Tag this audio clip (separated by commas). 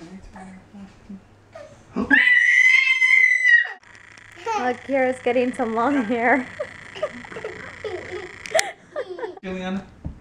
inside a small room, Speech